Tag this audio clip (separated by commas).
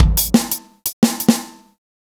Musical instrument, Drum kit, Drum, Percussion, Music